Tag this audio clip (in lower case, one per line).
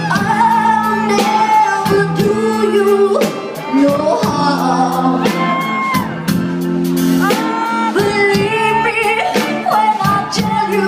music